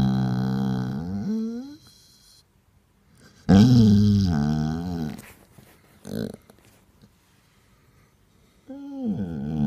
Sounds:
dog whimpering

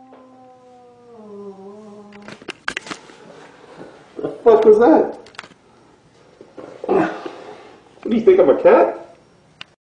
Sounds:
Speech

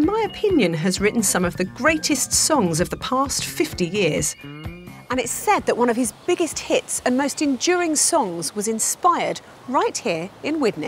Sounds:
Speech, Music

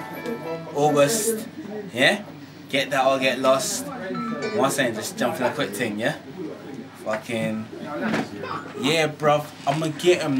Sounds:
Speech

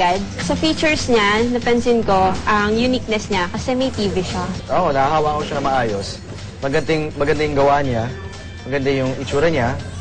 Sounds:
Music, Speech

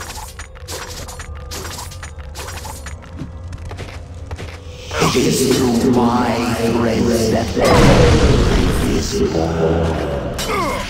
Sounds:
Music, Speech

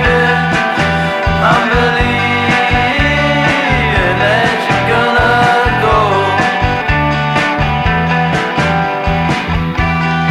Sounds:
Music

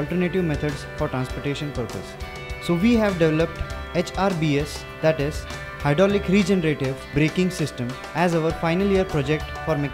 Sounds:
Music, Speech

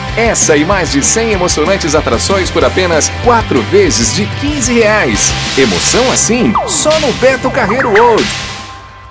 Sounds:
Music, Speech

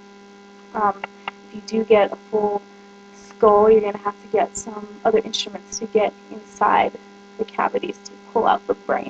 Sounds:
Speech

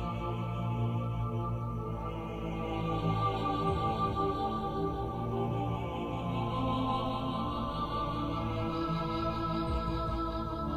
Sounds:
Sad music, Music

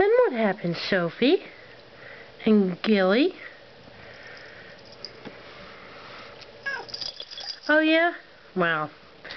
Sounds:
Speech, Cat, Domestic animals, Animal, Sniff

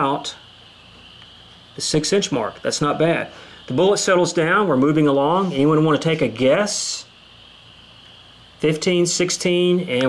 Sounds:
Speech

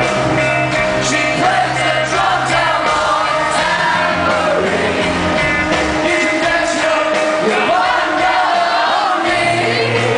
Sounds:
Music, Rock and roll

